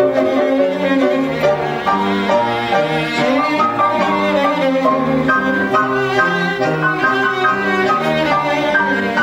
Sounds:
Music, Piano, Bowed string instrument, Violin, Musical instrument, String section

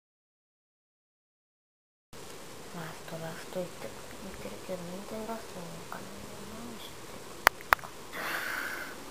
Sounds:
Speech

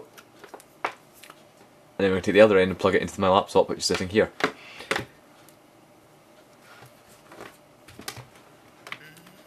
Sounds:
Speech, inside a small room

